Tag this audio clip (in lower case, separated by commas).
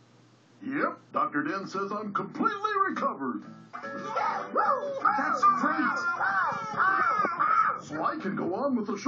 speech, music